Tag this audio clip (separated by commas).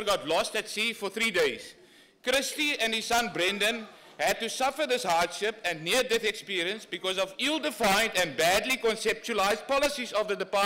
Speech, Male speech, Narration